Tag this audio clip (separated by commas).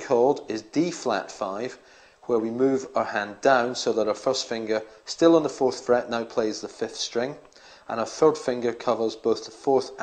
Speech